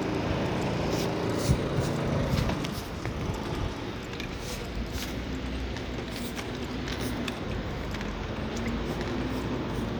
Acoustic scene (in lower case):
street